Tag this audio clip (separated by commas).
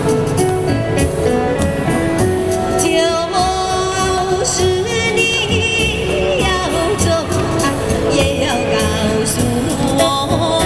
Female singing, Music